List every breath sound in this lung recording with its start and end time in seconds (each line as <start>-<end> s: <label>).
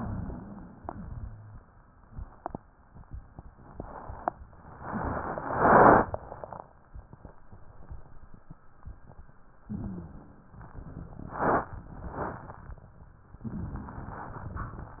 0.74-1.56 s: exhalation
0.74-1.56 s: wheeze
9.64-10.27 s: inhalation
9.64-10.27 s: wheeze